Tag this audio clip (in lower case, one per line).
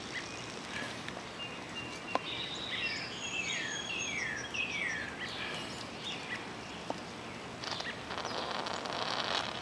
outside, rural or natural